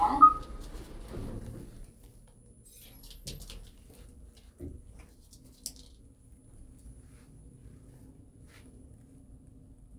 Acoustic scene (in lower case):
elevator